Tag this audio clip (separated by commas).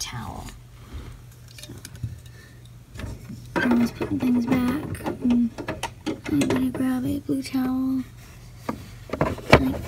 Speech, inside a small room